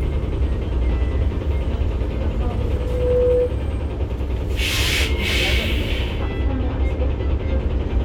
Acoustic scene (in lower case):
bus